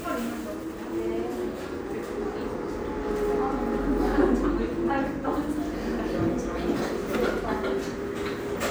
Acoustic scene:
cafe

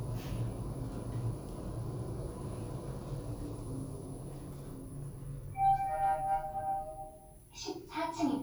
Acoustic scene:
elevator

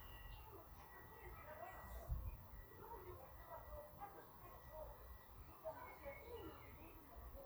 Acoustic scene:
park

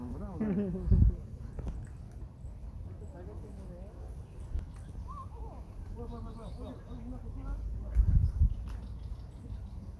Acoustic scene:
park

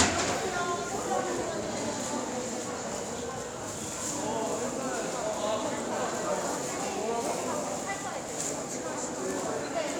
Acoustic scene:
crowded indoor space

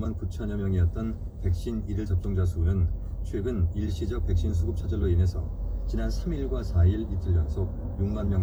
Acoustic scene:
car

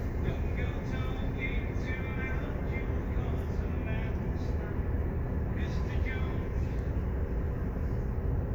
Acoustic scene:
bus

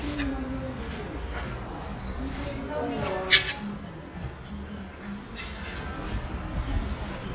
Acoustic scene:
restaurant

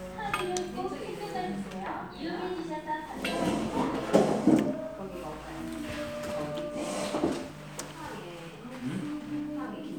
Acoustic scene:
crowded indoor space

